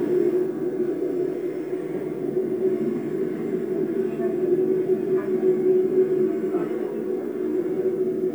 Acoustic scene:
subway train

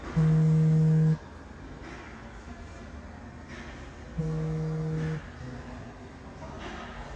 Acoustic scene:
elevator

